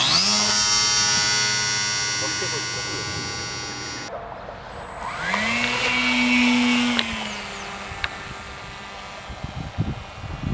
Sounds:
aircraft, speech

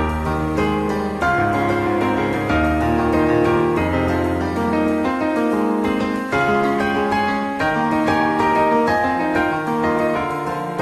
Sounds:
musical instrument, music

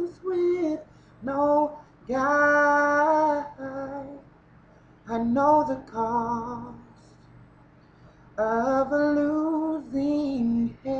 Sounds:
female singing

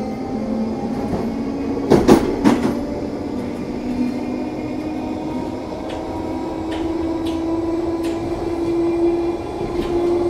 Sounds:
train

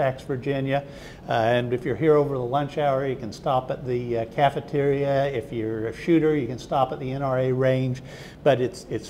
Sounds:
speech

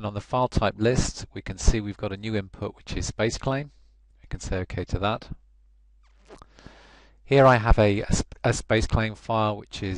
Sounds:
speech

